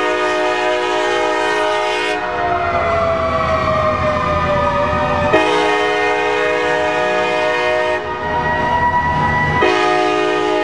A train horn is honking and sirens are going off